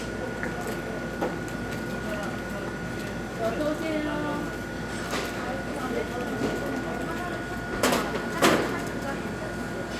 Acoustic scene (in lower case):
cafe